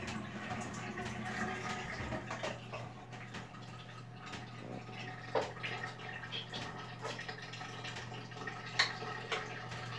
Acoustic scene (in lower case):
restroom